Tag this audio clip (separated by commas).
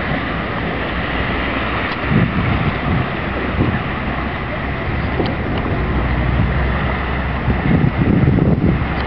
Speech, Bus, Vehicle